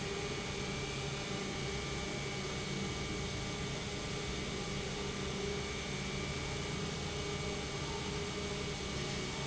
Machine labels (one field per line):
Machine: pump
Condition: abnormal